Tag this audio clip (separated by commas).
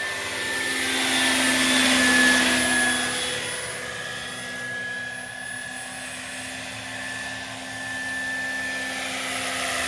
Helicopter, Vehicle